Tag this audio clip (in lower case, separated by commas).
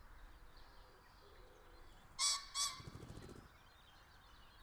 bird, animal, wild animals